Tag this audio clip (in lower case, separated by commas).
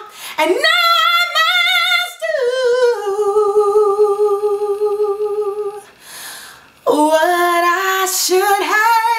singing